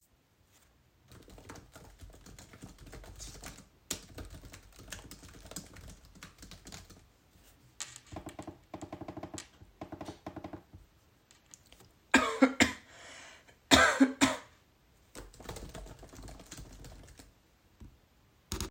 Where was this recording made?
bedroom